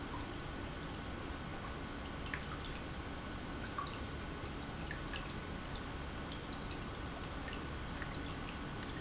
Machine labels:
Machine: pump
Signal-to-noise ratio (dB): 0 dB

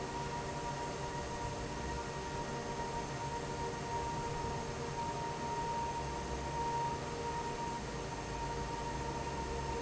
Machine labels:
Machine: fan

